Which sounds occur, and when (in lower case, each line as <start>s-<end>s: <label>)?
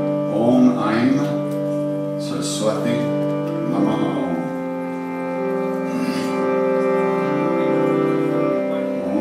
0.0s-9.2s: music
0.4s-1.4s: man speaking
2.0s-3.2s: man speaking
3.7s-4.5s: man speaking